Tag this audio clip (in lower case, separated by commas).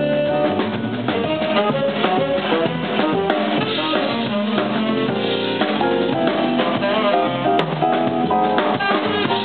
snare drum, drum, saxophone, rimshot, percussion, drum kit, drum roll, bass drum, brass instrument